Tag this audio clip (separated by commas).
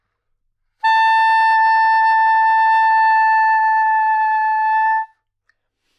Musical instrument, Music, Wind instrument